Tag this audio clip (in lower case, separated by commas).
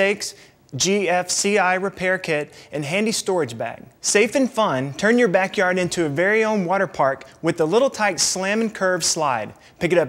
speech